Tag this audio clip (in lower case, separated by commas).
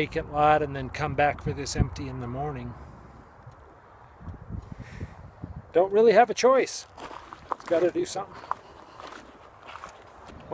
speech